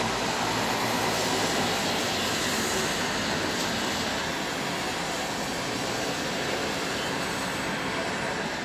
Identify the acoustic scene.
street